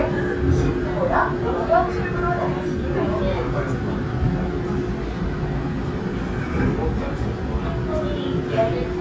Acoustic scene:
subway train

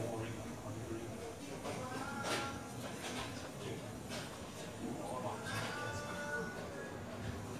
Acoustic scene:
cafe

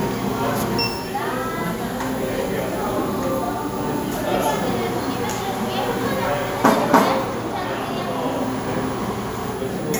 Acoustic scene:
cafe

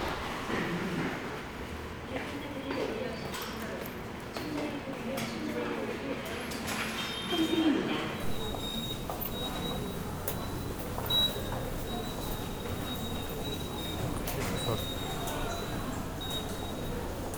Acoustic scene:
subway station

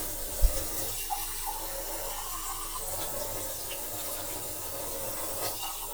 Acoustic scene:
kitchen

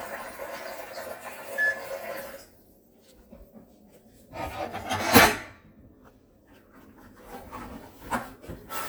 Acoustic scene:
kitchen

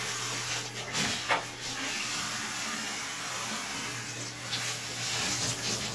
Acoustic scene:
restroom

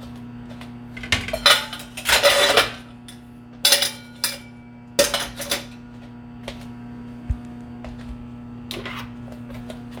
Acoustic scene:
kitchen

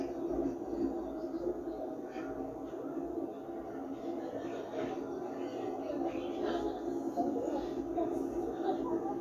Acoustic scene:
park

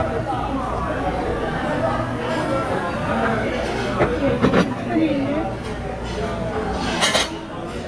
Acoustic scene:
restaurant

